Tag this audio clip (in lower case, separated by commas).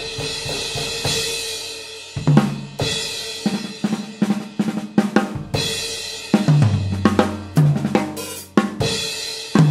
playing bass drum, bass drum, music